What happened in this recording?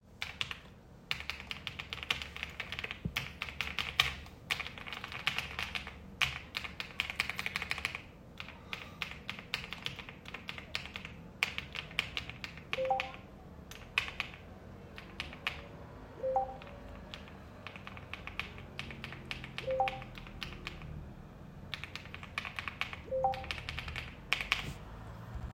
I sat down at my desk and began typing on the keyboard. After a short while my phone started ringing with a notification. I continued typing briefly before stopping.